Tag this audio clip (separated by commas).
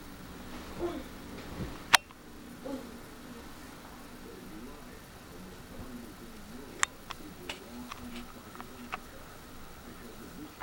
Animal, Domestic animals